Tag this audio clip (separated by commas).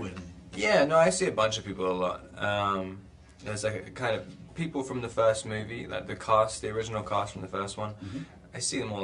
Speech